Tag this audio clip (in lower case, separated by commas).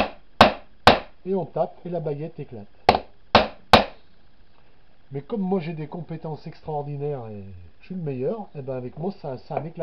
hammering nails